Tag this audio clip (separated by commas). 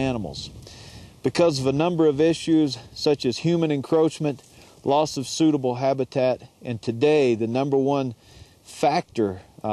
Speech